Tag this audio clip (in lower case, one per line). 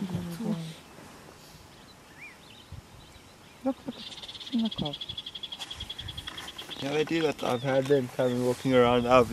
speech
animal